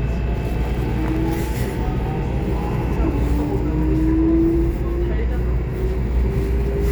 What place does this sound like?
subway train